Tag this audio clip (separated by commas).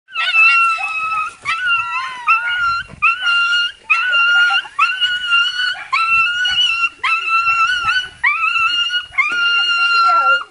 dog whimpering